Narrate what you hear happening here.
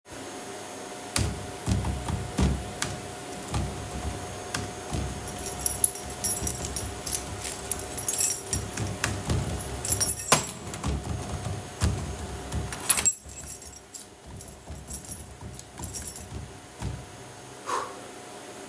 I was typing on my keyboard while te vacuum cleaner was running in the background and I moved my keys on the desk and took a breath out at the end.